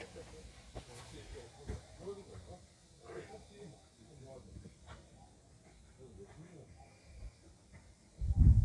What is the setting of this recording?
park